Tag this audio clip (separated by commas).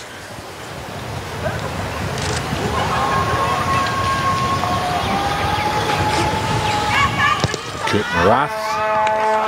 Speech, outside, urban or man-made